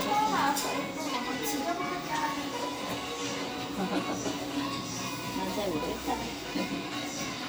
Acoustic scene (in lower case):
cafe